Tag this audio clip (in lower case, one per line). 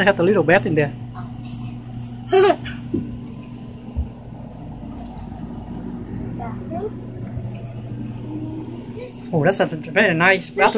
speech